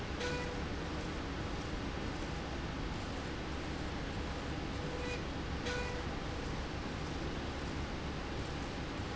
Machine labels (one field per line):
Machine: slide rail